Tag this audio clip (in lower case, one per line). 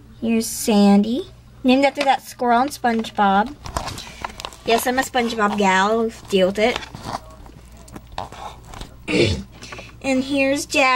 inside a small room
speech